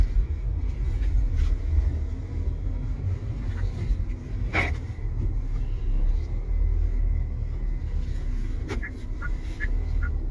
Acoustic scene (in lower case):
car